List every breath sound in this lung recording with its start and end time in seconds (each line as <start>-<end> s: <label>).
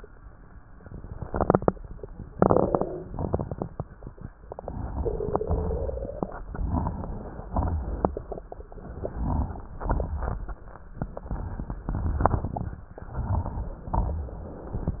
2.33-3.08 s: inhalation
2.33-3.08 s: crackles
3.15-3.91 s: exhalation
3.15-3.91 s: crackles
4.44-5.37 s: inhalation
4.44-5.37 s: crackles
5.44-6.37 s: exhalation
5.44-6.37 s: crackles
6.52-7.44 s: inhalation
6.52-7.44 s: crackles
7.50-8.42 s: exhalation
7.50-8.42 s: crackles
8.84-9.77 s: inhalation
8.84-9.77 s: crackles
9.80-10.73 s: exhalation
9.80-10.73 s: crackles
10.91-11.84 s: inhalation
10.91-11.84 s: crackles
11.86-12.78 s: exhalation
11.86-12.78 s: crackles
12.97-13.90 s: inhalation
12.97-13.90 s: crackles
13.91-14.97 s: exhalation
13.91-14.97 s: crackles